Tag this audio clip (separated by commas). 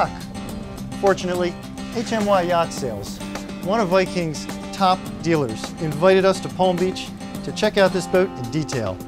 Music, Speech